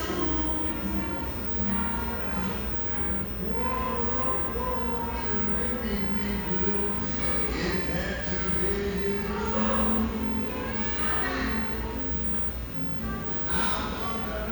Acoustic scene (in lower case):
restaurant